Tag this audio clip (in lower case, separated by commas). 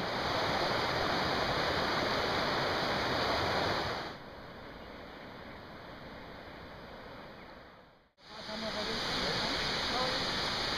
speech